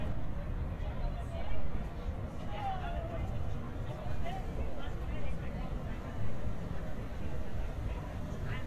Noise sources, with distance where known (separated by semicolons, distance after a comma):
unidentified human voice, near